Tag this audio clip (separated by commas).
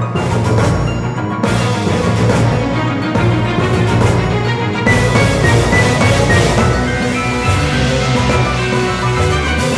Music